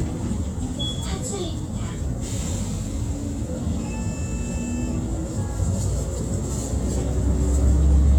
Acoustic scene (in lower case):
bus